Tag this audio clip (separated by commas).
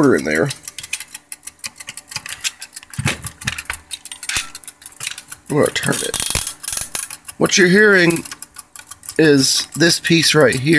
Speech, Rattle